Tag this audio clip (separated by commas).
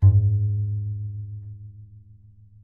Music, Bowed string instrument, Musical instrument